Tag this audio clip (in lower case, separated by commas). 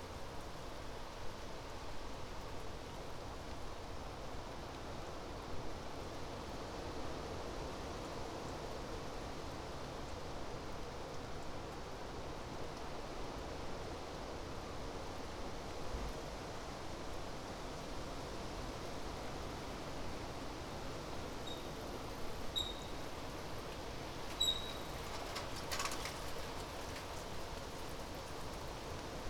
bicycle, vehicle